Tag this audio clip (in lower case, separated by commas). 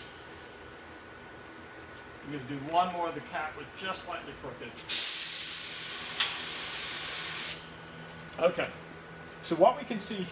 spray, speech